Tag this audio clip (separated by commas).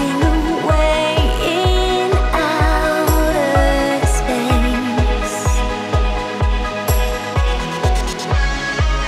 Music